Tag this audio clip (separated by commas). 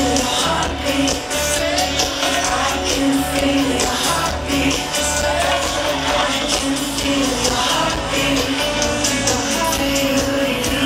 Music